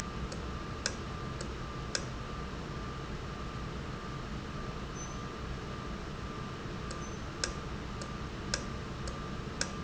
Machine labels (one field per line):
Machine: valve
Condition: normal